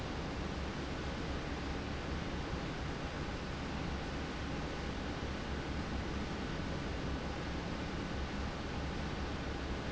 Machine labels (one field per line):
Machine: fan